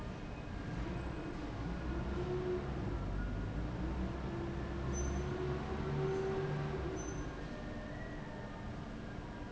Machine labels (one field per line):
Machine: fan